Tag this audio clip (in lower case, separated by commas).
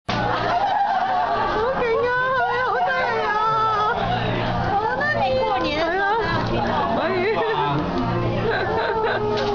speech, music